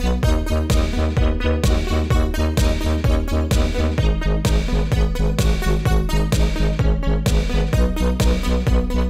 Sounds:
techno

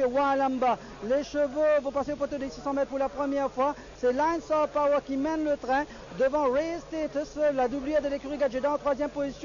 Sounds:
speech

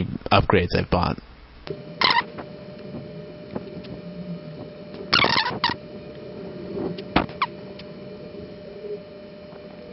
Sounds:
speech

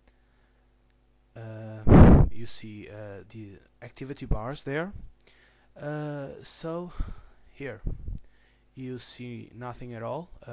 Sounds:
speech

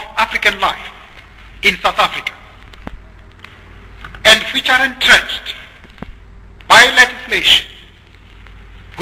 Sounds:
man speaking
speech
narration

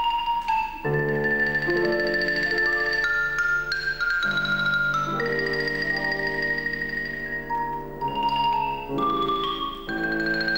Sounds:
xylophone
glockenspiel
mallet percussion

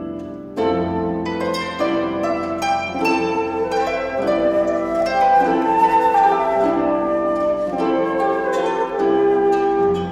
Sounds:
flute
wind instrument

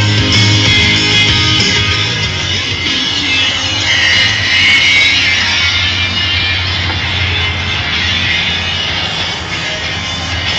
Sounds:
music

